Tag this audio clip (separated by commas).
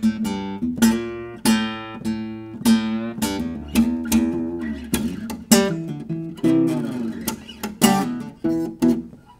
Musical instrument, Guitar, Music, Plucked string instrument, Strum, Bass guitar